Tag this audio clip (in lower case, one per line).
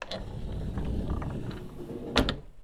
home sounds
door
slam
sliding door
wood